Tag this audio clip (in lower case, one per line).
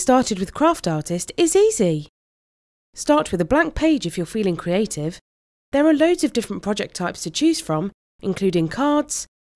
speech